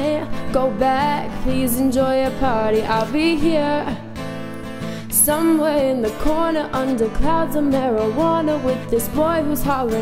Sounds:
Female singing, Music

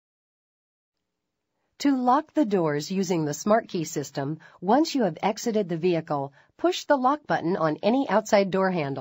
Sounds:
Speech

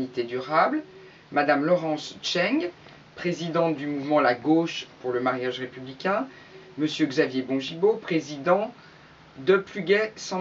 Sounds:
Speech

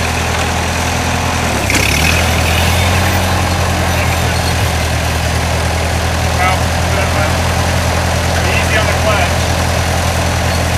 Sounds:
outside, rural or natural, Vehicle, Speech

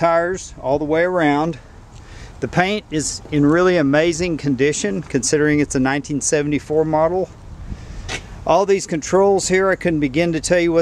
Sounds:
Speech

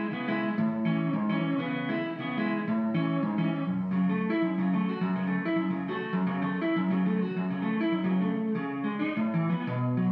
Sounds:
Strum, Guitar, Plucked string instrument, Music, Musical instrument

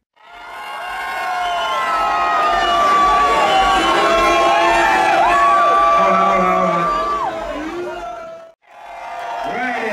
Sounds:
Speech

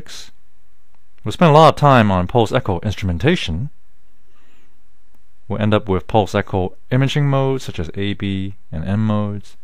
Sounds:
Speech

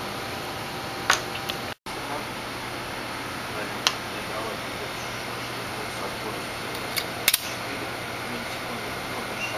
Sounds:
Speech, inside a small room

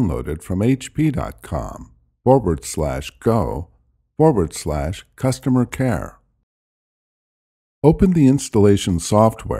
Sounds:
Speech

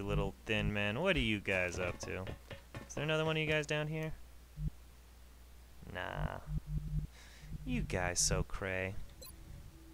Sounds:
Speech

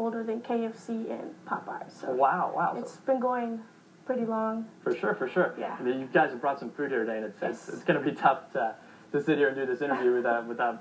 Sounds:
Speech

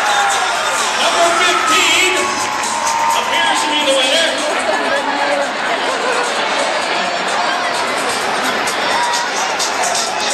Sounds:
Speech, Music

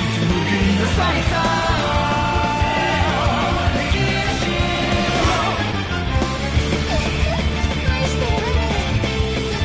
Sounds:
Music

